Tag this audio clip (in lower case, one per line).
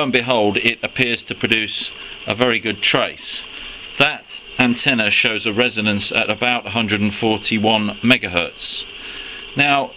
speech